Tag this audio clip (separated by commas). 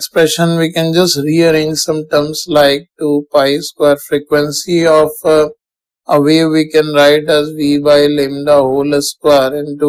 Speech